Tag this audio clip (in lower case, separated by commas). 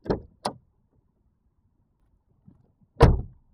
slam, car, domestic sounds, motor vehicle (road), door, vehicle